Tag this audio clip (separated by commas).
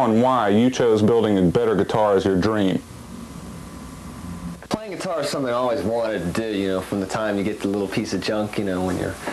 Speech